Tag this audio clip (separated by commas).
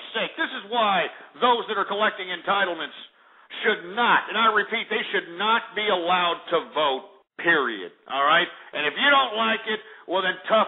Speech